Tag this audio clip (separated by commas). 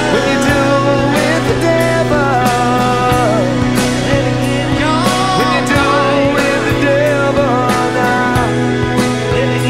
Percussion, Musical instrument, Progressive rock, Drum, Music, Independent music, Guitar, Rock music